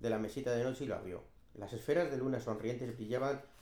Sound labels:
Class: speech